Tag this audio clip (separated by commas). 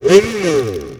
home sounds